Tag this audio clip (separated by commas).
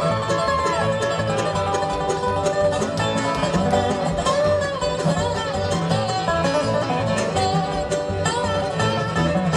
Bluegrass, Music